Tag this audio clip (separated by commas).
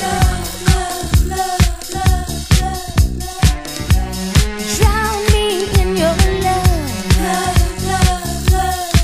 Funk, Music